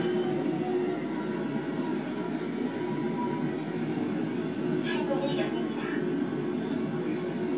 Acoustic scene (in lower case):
subway train